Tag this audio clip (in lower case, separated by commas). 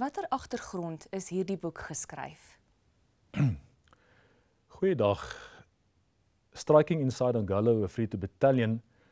speech